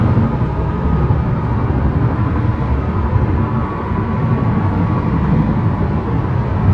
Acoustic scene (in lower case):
car